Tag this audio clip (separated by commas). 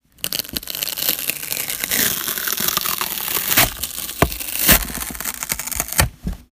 Tearing